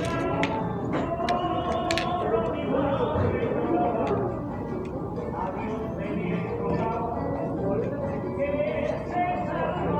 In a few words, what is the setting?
cafe